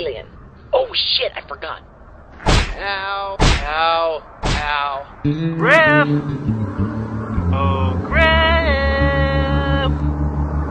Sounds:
Speech, Music, outside, rural or natural

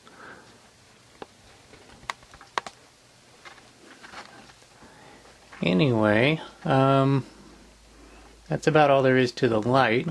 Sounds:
Speech, inside a small room

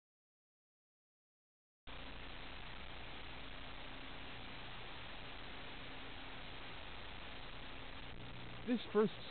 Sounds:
Speech

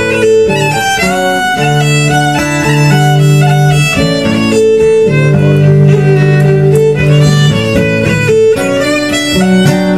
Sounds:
Music, String section, Bowed string instrument, Musical instrument

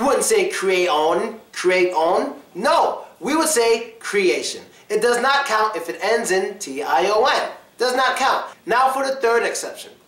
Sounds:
Speech

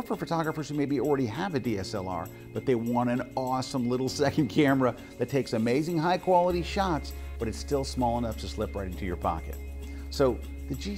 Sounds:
Speech, Music

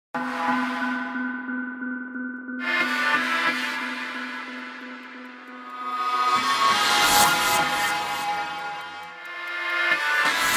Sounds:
Music

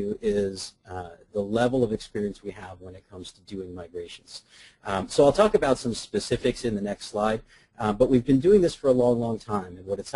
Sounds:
Speech

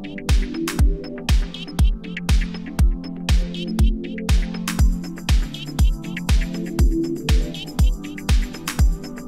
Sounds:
Music

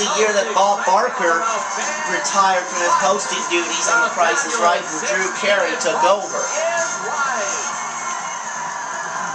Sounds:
Music, Speech

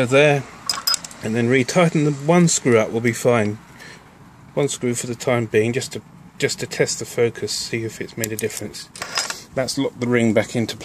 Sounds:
Speech

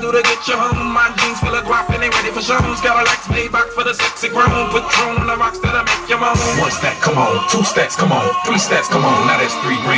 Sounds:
Music, Singing

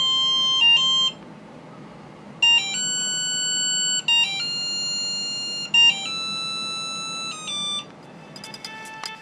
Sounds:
inside a large room or hall, Music

